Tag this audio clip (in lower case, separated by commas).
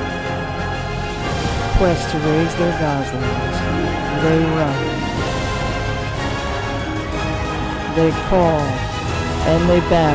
theme music, speech, music